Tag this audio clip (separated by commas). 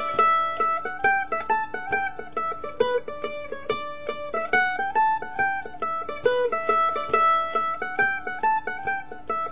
Music, Mandolin